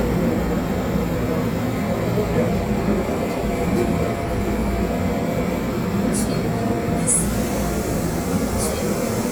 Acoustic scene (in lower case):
subway train